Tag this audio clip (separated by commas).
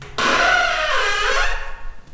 Squeak